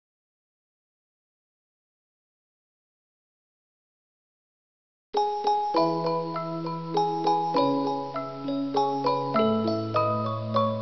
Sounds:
Glockenspiel, Marimba, Mallet percussion

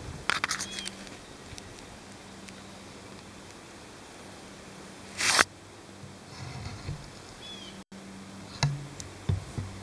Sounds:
Animal

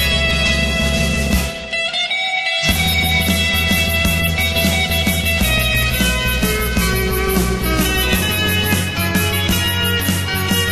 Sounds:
Plucked string instrument, Guitar, Musical instrument, Music

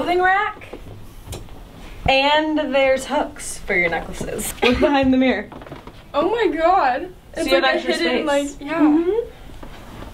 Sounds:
inside a small room, Speech

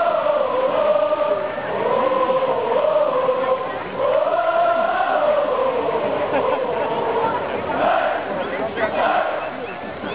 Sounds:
Speech

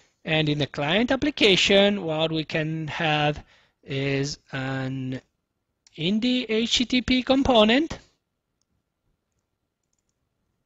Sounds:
Speech

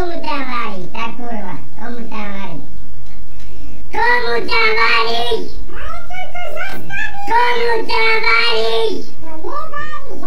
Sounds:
Speech

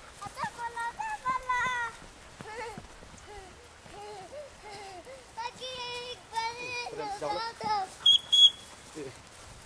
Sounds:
Speech

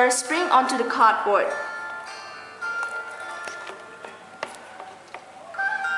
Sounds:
Music, Speech

